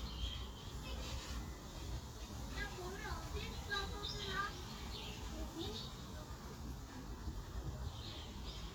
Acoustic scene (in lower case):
park